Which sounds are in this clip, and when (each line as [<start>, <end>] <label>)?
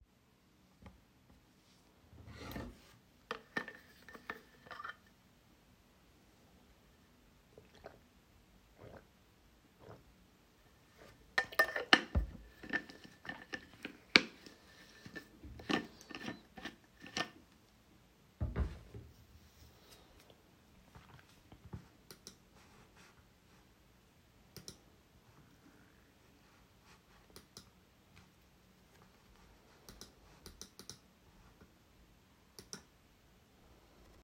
[2.22, 5.08] cutlery and dishes
[11.29, 18.79] cutlery and dishes